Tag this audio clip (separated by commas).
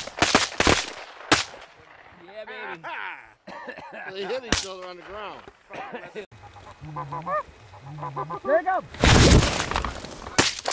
Goose, Honk, Fowl